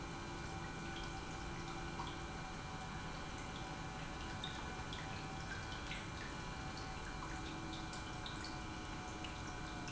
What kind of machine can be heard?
pump